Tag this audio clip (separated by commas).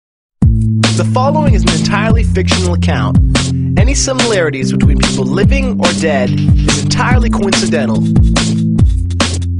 Music, Speech